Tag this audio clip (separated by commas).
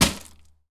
Crushing